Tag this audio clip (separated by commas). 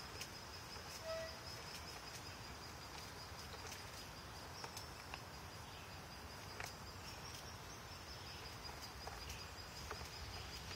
woodpecker pecking tree